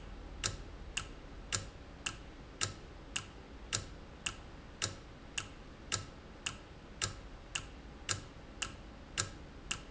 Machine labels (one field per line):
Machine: valve